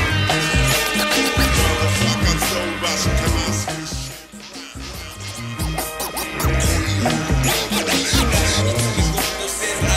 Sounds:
sampler, music

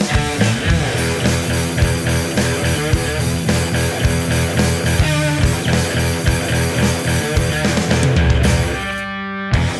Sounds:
playing bass drum

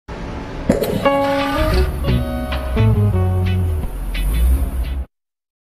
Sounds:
music

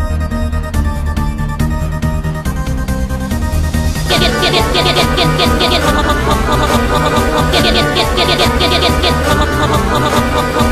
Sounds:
music

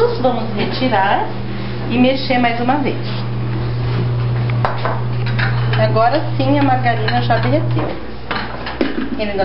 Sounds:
speech, dishes, pots and pans, microwave oven

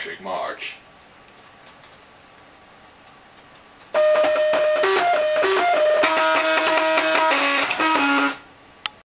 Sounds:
speech

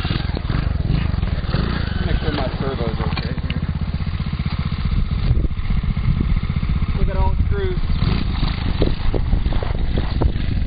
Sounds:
vehicle, speech

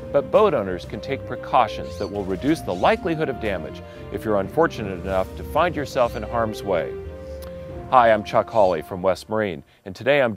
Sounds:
music, speech

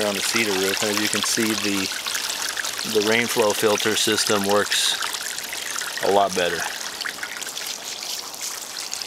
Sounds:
speech

